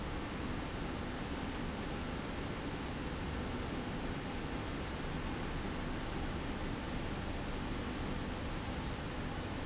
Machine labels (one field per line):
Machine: slide rail